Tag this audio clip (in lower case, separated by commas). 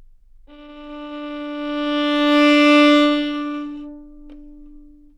music, musical instrument, bowed string instrument